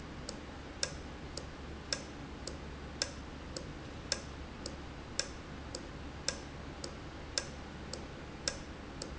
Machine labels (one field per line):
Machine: valve